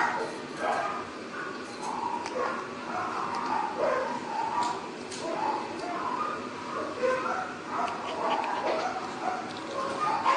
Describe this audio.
A lot of dogs barking with a slight echo